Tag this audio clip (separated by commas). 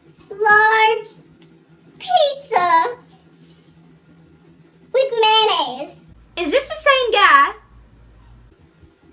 Speech